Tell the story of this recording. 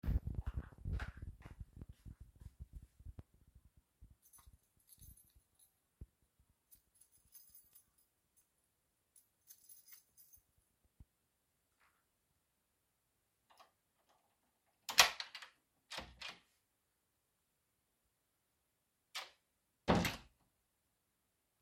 After a long day, I go over to my apartment, bring out the key to unlock the door and get in.